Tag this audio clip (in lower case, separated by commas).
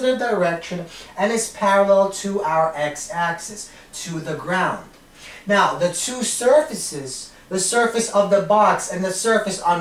speech